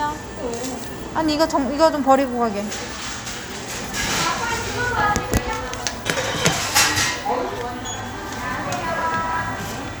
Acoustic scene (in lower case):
crowded indoor space